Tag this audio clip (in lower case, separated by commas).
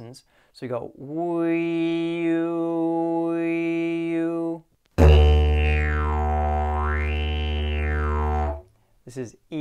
playing didgeridoo